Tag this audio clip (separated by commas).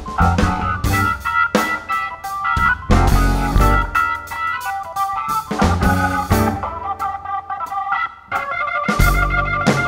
Piano, Music, Drum, Musical instrument, Electronic organ, Keyboard (musical)